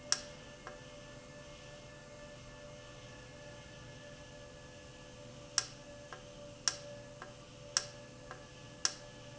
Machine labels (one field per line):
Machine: valve